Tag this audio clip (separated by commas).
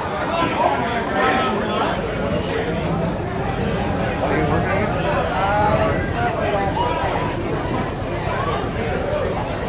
Speech